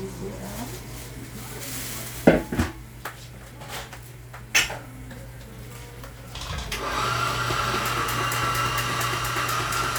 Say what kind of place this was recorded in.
cafe